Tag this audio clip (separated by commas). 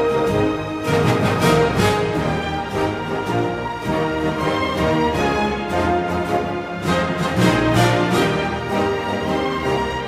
Music